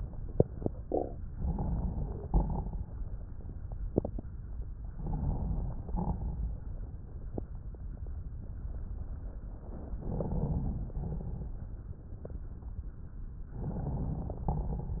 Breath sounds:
Inhalation: 1.33-2.28 s, 4.95-5.84 s, 10.00-10.91 s, 13.53-14.46 s
Exhalation: 2.28-2.94 s, 5.84-6.40 s, 10.91-11.71 s, 14.46-15.00 s
Crackles: 2.28-2.94 s, 5.84-6.40 s, 10.91-11.71 s, 14.46-15.00 s

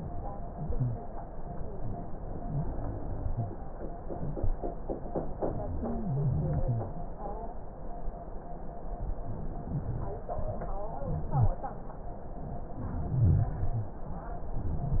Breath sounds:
Inhalation: 12.85-13.74 s
Wheeze: 5.79-6.96 s, 11.29-11.67 s
Rhonchi: 13.05-13.57 s

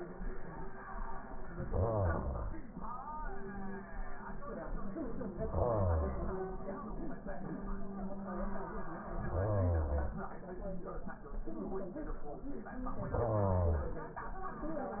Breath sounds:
Inhalation: 1.50-2.73 s, 5.49-6.71 s, 9.10-10.32 s, 13.07-14.15 s

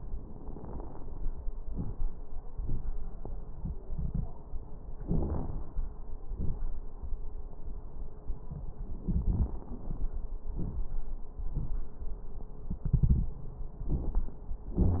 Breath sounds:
Inhalation: 1.67-2.10 s, 5.07-5.70 s, 9.01-9.61 s
Exhalation: 2.44-2.88 s, 6.28-6.77 s, 10.51-10.91 s
Crackles: 1.67-2.10 s, 2.44-2.88 s, 5.07-5.70 s, 6.28-6.77 s, 9.01-9.61 s, 10.51-10.91 s

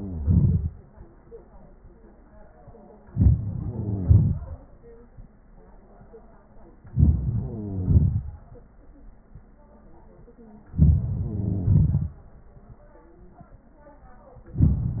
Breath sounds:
Inhalation: 3.10-3.59 s, 6.92-7.17 s, 10.72-11.00 s, 14.50-15.00 s
Exhalation: 0.00-0.76 s, 3.58-4.60 s, 7.18-8.44 s, 11.01-12.16 s
Crackles: 0.00-0.65 s, 3.57-4.39 s, 7.20-8.26 s, 11.06-12.12 s

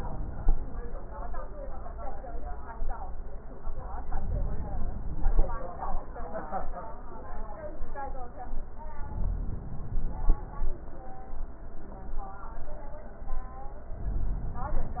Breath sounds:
Inhalation: 3.97-5.47 s, 9.00-10.37 s

